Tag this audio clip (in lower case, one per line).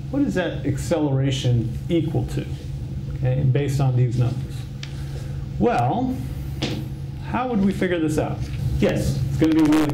speech